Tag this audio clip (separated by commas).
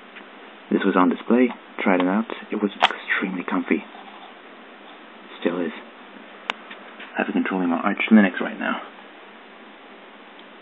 Speech